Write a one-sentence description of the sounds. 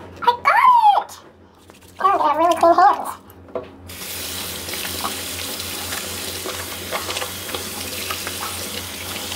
A young person speaks, and water runs, splashes and gurgles